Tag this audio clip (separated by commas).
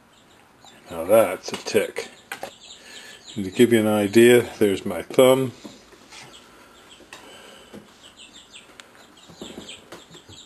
bird call, Speech